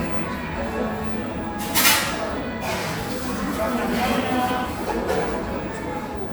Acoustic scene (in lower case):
cafe